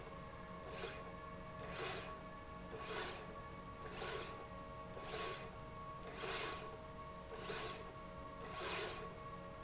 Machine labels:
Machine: slide rail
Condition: normal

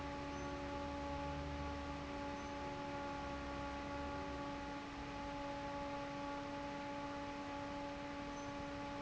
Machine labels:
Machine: fan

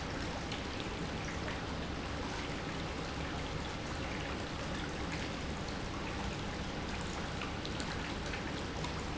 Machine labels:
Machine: pump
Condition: normal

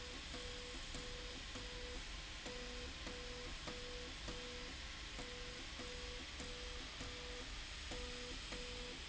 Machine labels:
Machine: slide rail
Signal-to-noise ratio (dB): 6 dB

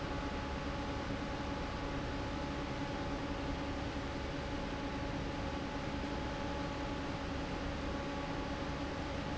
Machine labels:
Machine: fan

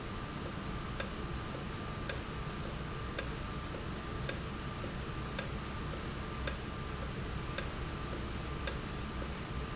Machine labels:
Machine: valve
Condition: normal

